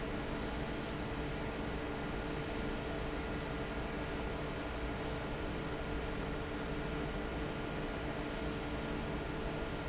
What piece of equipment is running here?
fan